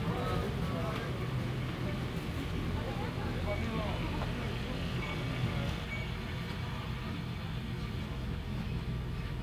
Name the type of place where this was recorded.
residential area